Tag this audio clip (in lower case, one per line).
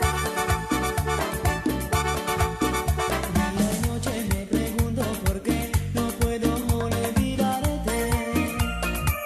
music